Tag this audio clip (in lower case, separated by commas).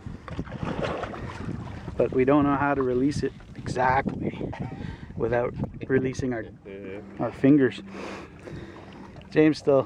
ocean, speech